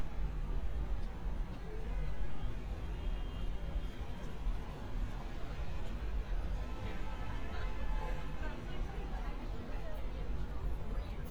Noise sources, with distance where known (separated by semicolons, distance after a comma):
car horn, far; unidentified human voice